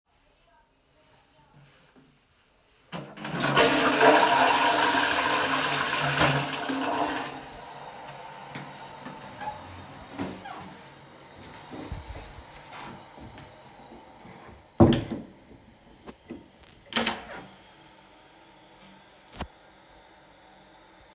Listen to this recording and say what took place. I entered the bathroom and recorded myself flushing the toilet. Immediately after the flush finished, I walked out and closed the bathroom door.